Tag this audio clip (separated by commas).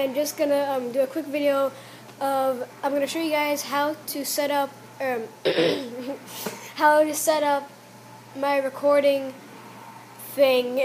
Speech